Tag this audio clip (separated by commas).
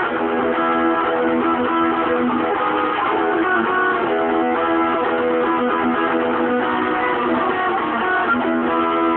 Electric guitar, Music, Plucked string instrument, Musical instrument, Guitar, Strum